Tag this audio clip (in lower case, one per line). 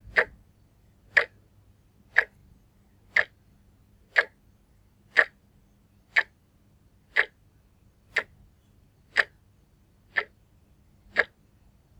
clock
mechanisms
tick-tock